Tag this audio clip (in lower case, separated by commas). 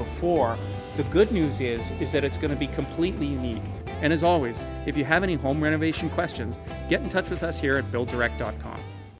music, speech